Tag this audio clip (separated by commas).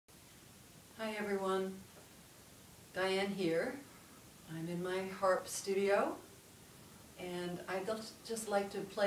playing harp